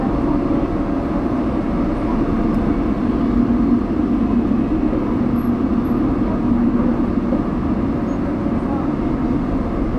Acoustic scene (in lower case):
subway train